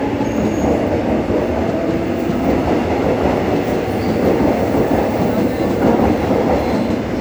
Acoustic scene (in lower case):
subway station